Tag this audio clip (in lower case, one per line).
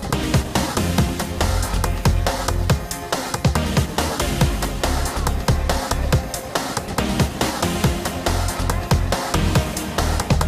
music